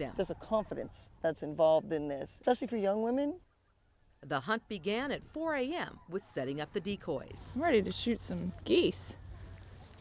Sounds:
Speech

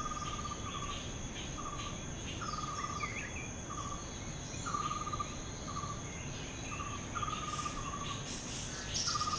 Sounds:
Cricket, Insect

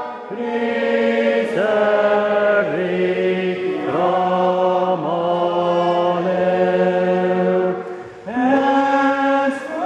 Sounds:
Vocal music, Chant, Choir, Singing

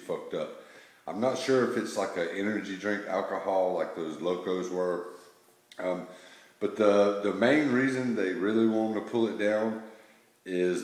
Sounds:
Speech

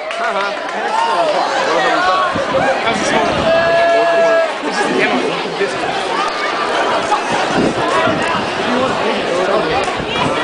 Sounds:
Speech

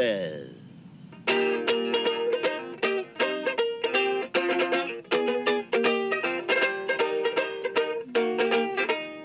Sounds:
Music, Speech

